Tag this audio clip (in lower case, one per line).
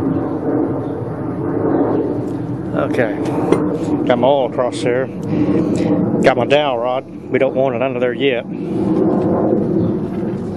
speech